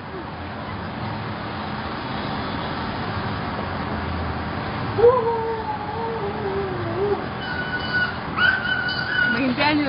Something hisses as animals whimper then a woman begins talking